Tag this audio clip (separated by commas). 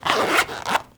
Zipper (clothing), Domestic sounds